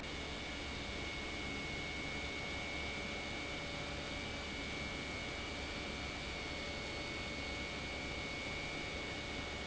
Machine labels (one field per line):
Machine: pump